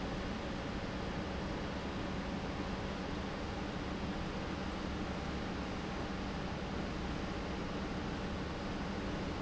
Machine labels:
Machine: pump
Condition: normal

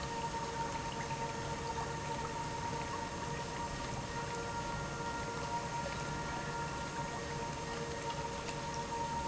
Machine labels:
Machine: pump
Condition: normal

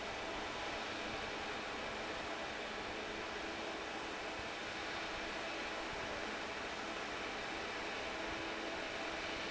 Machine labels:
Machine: fan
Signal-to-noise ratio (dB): 0 dB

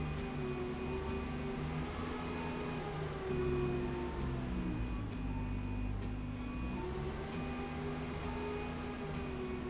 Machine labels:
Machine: slide rail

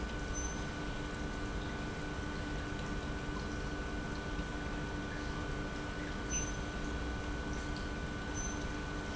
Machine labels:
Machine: pump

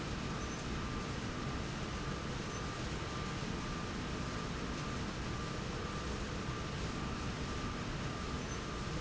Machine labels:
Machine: slide rail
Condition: normal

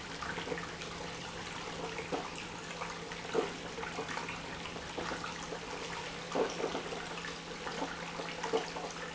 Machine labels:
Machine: pump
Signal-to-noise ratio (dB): 6 dB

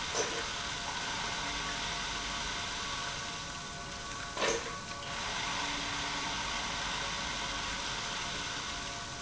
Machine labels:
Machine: pump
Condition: abnormal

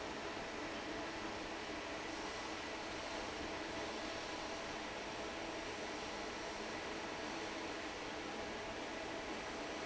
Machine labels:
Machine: fan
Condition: normal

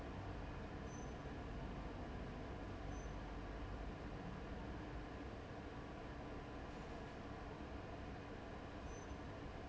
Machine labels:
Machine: fan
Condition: abnormal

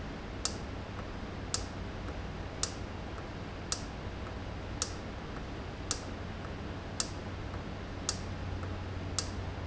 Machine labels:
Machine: valve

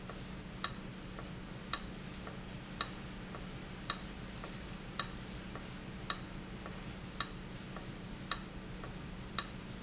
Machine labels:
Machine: valve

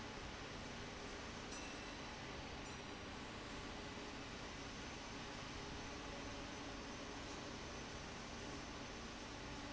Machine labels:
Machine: fan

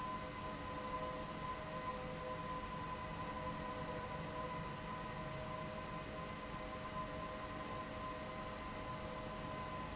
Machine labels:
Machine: fan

